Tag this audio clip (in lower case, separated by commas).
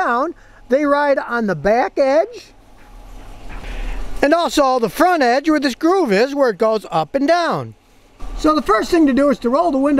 speech